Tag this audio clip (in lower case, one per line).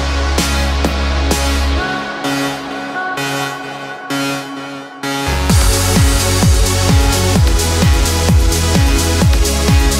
music